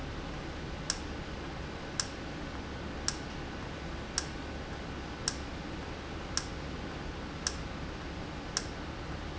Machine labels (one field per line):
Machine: valve